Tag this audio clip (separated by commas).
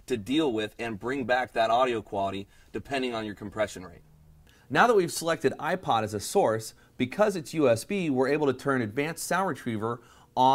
Speech